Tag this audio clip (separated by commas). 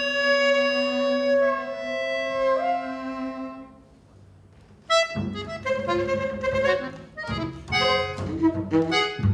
Double bass, Accordion, Saxophone, Music, Cello, Musical instrument, Bowed string instrument